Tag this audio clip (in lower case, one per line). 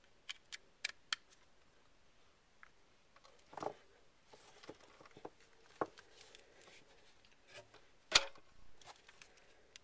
inside a small room